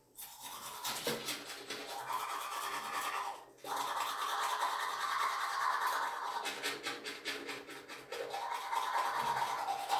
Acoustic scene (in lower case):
restroom